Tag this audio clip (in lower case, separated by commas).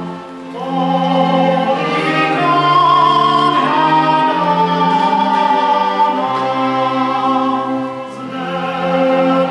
orchestra, bowed string instrument, classical music, musical instrument, music, violin, cello